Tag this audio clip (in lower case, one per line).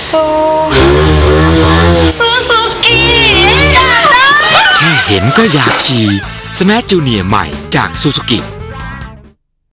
speech
music